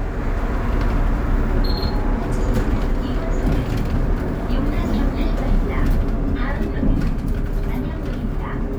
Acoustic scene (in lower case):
bus